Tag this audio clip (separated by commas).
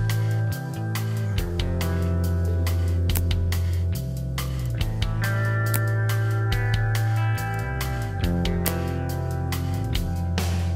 Arrow